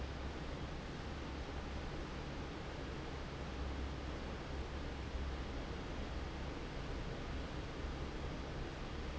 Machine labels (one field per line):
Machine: fan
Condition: normal